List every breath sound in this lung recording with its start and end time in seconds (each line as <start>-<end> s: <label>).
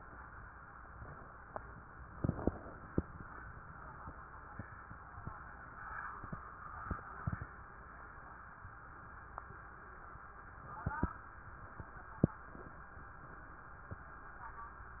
2.15-3.17 s: inhalation